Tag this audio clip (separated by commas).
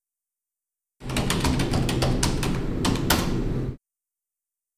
Typing, home sounds